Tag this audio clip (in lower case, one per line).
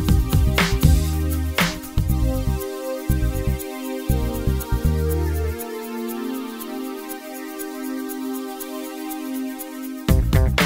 music